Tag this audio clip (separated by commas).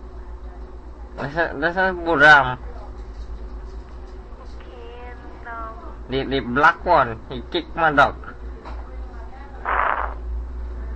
Speech